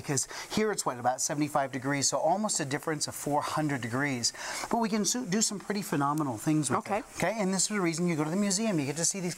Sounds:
speech

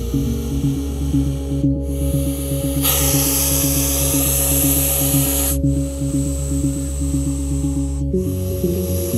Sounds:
snake hissing

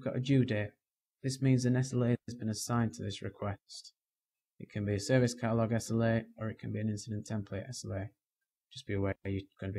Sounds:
speech

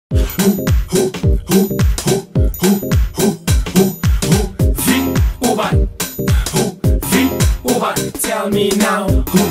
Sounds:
afrobeat

